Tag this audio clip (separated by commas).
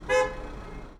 Motor vehicle (road), Alarm, Car, Traffic noise, Vehicle, car horn